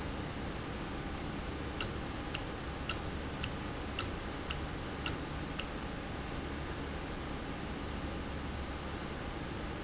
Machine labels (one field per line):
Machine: valve